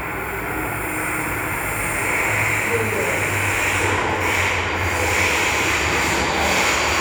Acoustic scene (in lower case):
subway station